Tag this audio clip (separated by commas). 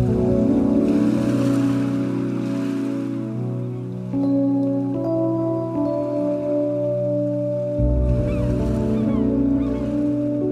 Music, Electric guitar, Guitar, Plucked string instrument, Musical instrument